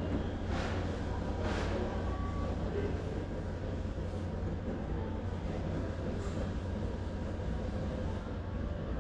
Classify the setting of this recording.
crowded indoor space